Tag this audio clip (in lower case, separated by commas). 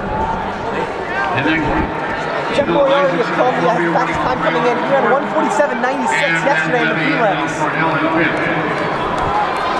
speech, outside, urban or man-made